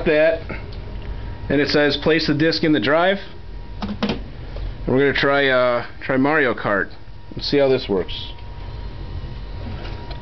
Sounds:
Speech

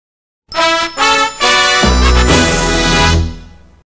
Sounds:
Music, Television

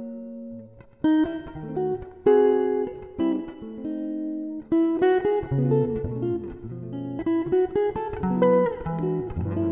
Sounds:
Musical instrument, Music, Guitar, Plucked string instrument

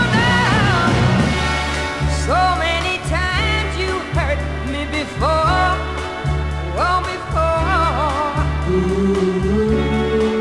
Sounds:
Music

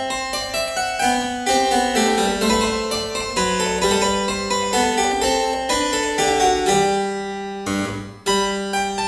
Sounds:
playing harpsichord

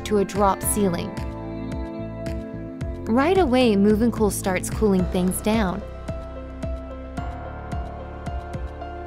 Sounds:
Speech, Music

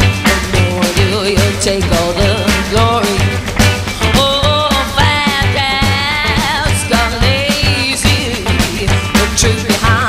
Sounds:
Singing, Music

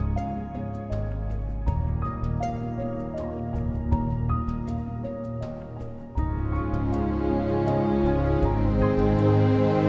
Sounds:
Music

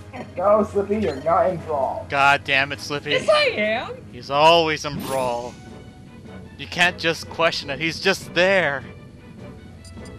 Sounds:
Speech, Music

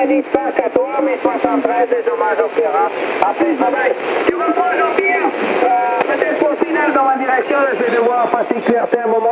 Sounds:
Speech, Radio

